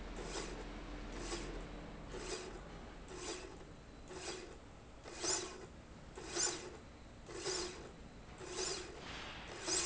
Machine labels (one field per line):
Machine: slide rail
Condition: normal